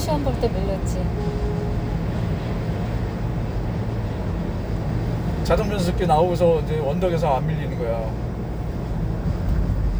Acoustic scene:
car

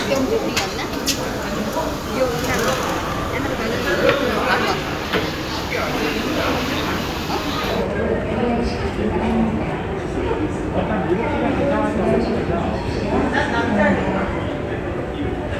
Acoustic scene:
crowded indoor space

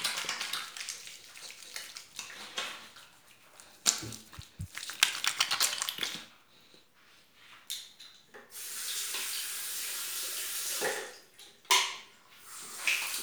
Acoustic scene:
restroom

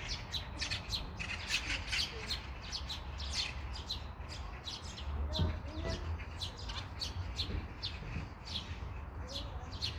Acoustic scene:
park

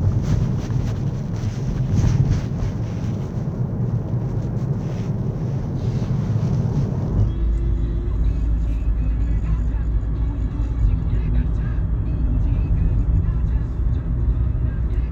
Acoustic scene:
car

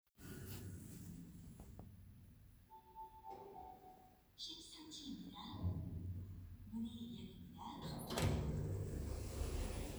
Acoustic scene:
elevator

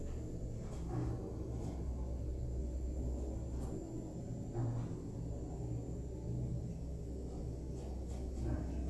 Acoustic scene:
elevator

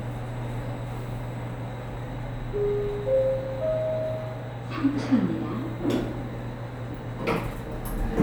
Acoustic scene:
elevator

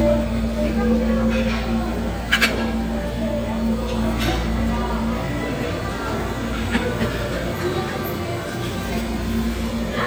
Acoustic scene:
restaurant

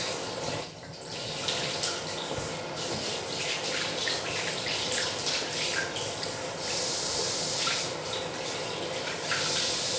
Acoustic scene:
restroom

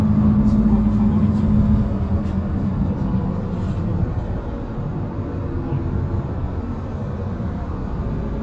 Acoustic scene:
bus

